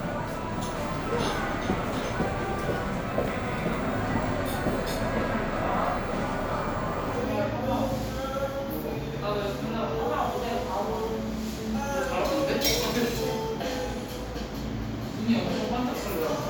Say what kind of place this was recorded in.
cafe